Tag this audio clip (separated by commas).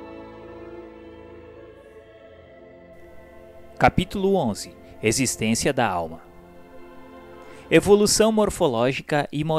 Music, Speech